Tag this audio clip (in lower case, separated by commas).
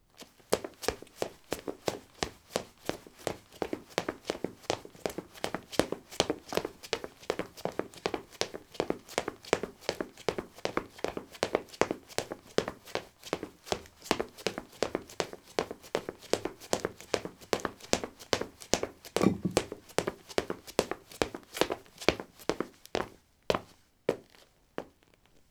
run